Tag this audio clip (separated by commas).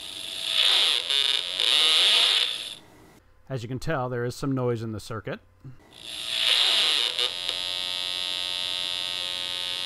electric razor, Speech